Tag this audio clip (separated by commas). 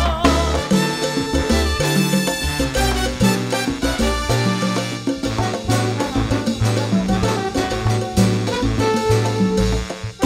Music of Latin America, Music, Salsa music